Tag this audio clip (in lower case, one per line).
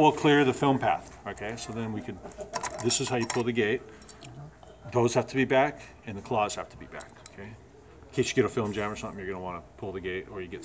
speech